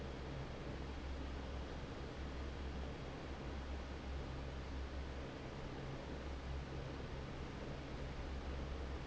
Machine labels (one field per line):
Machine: fan